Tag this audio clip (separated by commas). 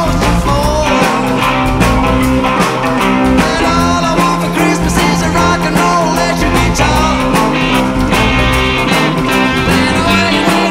Singing, Psychedelic rock, Musical instrument, Music, Rock and roll, Guitar